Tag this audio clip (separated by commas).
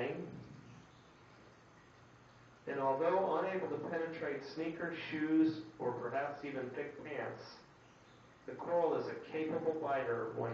Speech, inside a small room